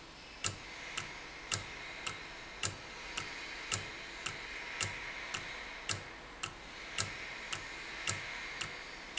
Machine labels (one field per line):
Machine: valve